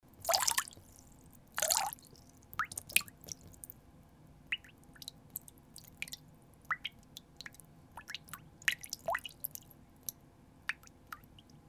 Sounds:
liquid, pour, dribble, drip

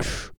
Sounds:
respiratory sounds, breathing

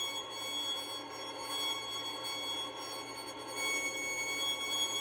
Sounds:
bowed string instrument, music, musical instrument

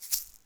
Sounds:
musical instrument, music, rattle (instrument), percussion

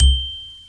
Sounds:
bell, mallet percussion, xylophone, percussion, music, musical instrument

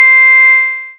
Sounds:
music, musical instrument, keyboard (musical), piano

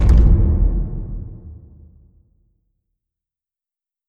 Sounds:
explosion

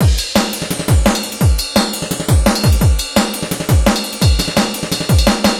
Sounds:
musical instrument, music, percussion, drum kit, drum

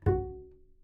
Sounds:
music, bowed string instrument, musical instrument

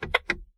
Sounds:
motor vehicle (road), vehicle, car

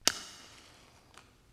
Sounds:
fire

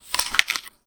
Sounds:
chewing

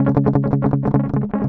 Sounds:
guitar, musical instrument, music, plucked string instrument, strum

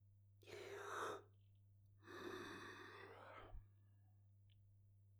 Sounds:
human voice

